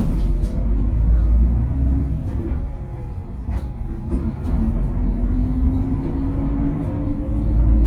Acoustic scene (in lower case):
bus